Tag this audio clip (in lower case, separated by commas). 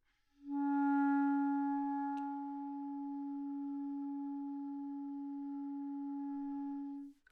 musical instrument, woodwind instrument, music